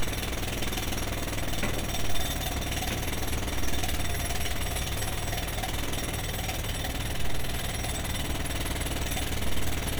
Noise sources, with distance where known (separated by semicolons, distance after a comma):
jackhammer, near